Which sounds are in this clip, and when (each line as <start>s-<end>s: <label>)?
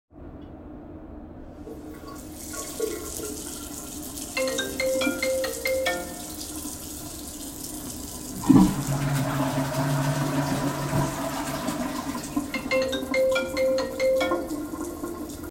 1.9s-15.5s: running water
4.3s-6.1s: phone ringing
8.4s-13.1s: toilet flushing
12.6s-14.5s: phone ringing